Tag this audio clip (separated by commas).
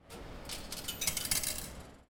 Coin (dropping), Domestic sounds